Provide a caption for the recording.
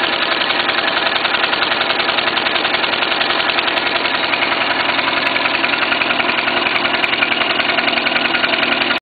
Loud noise of engine idling